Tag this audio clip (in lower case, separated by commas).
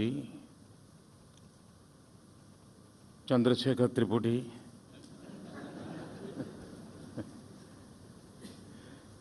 narration, speech, man speaking